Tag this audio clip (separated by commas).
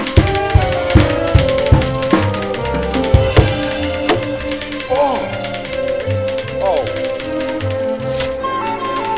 Percussion, Rimshot, Drum kit, Drum, Bass drum, Snare drum